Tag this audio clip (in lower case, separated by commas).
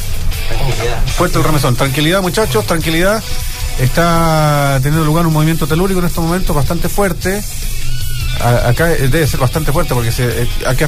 speech, music